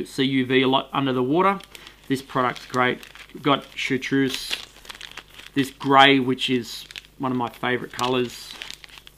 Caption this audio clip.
A man gives a speech and crumples paper